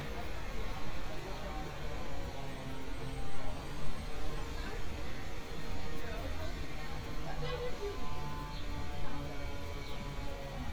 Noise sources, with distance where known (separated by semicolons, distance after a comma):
person or small group talking, far